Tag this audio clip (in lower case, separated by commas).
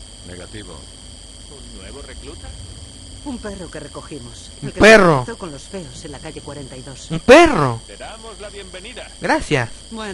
speech